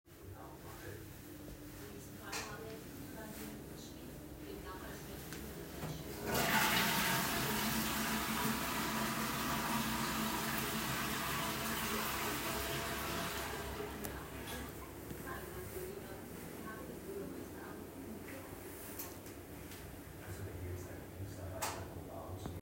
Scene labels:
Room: bathroom; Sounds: light switch, toilet flushing

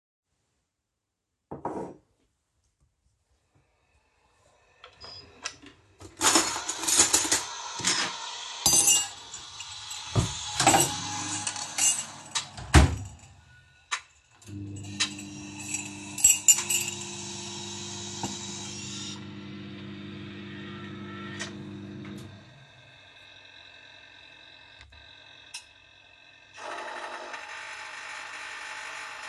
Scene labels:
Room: kitchen; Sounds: cutlery and dishes, coffee machine, wardrobe or drawer, microwave

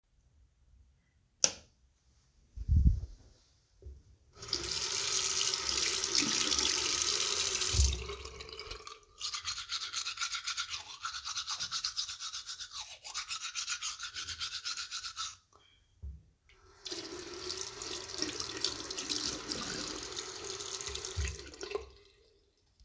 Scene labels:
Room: bathroom; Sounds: light switch, running water

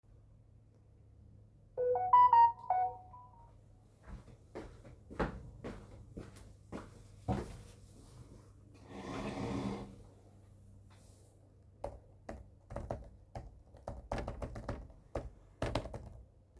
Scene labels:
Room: bedroom; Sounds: phone ringing, footsteps, keyboard typing

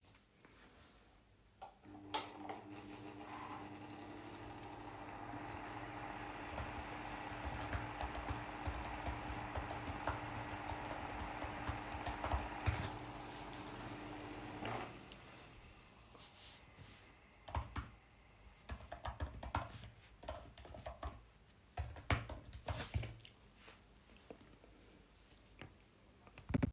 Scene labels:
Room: bedroom; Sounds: keyboard typing

